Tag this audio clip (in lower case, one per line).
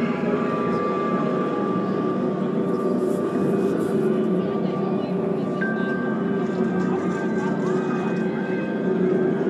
speech
music